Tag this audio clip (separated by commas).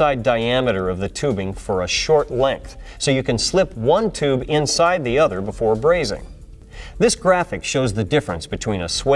Speech